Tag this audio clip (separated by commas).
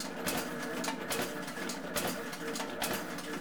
Mechanisms